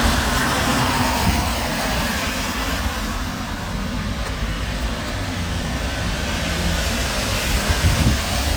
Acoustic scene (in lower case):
street